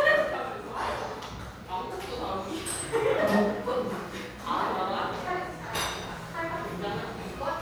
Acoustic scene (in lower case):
cafe